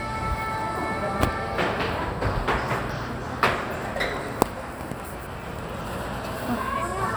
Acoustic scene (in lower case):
cafe